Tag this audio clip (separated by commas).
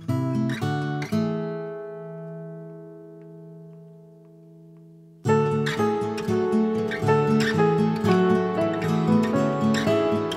Music